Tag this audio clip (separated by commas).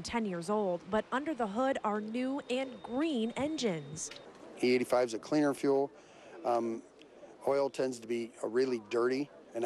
Speech